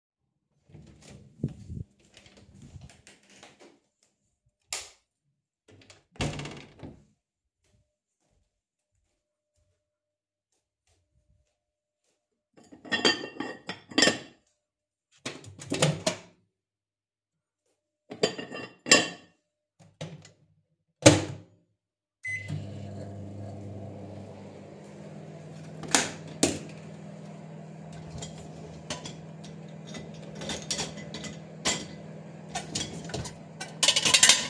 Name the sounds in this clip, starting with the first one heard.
door, light switch, cutlery and dishes, microwave